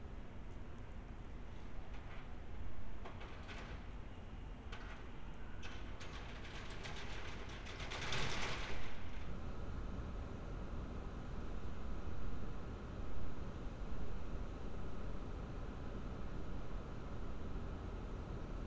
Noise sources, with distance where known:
background noise

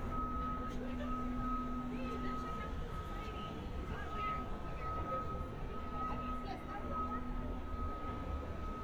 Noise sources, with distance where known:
engine of unclear size; reverse beeper, near; person or small group talking, far

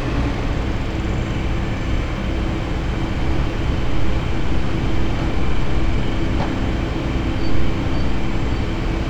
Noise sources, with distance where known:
large-sounding engine, near

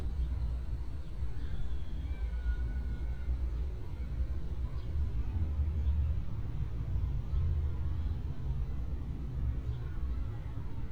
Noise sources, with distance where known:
unidentified human voice, far

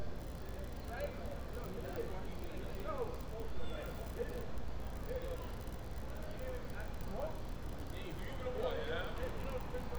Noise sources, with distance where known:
person or small group talking

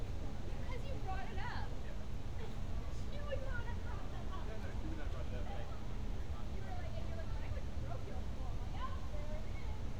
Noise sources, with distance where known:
person or small group talking

